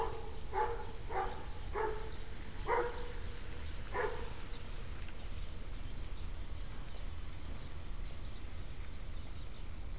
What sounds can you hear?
dog barking or whining